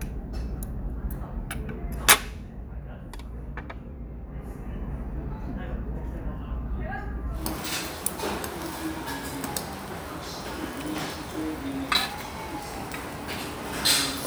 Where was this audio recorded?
in a restaurant